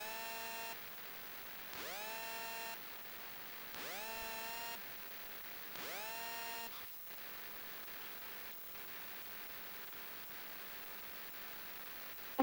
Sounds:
Alarm, Telephone

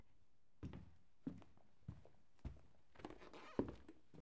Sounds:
footsteps

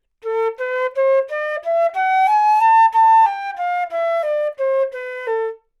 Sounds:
Wind instrument, Musical instrument, Music

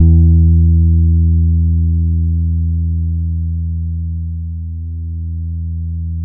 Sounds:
Music, Bass guitar, Musical instrument, Guitar, Plucked string instrument

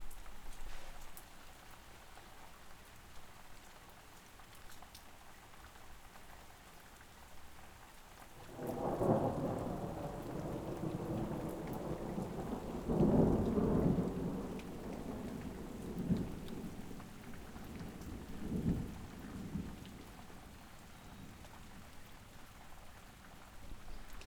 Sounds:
Thunderstorm, Rain, Water, Thunder

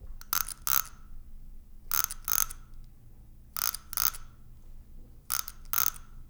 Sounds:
Wild animals, Animal, Frog

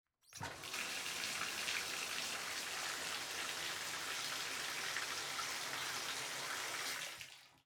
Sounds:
Domestic sounds, Bathtub (filling or washing)

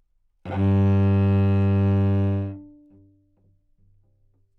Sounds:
Bowed string instrument, Musical instrument, Music

